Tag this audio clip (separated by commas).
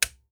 Domestic sounds, Typewriter, Typing